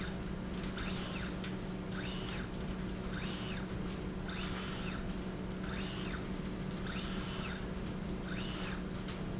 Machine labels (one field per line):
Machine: slide rail